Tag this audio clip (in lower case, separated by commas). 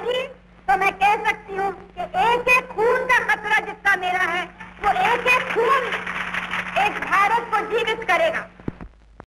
woman speaking, speech, narration